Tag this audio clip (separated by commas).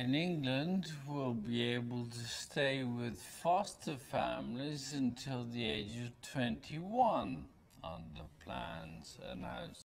Speech